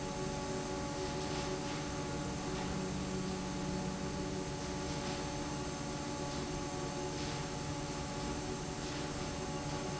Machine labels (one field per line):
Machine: fan